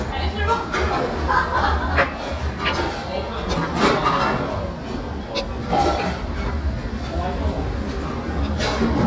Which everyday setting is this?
restaurant